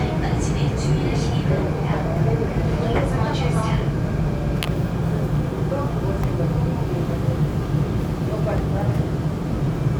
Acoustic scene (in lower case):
subway train